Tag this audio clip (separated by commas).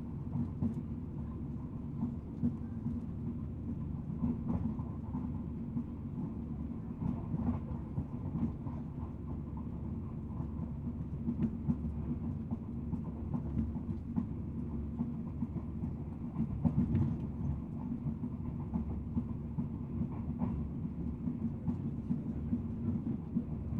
Vehicle, Train, Rail transport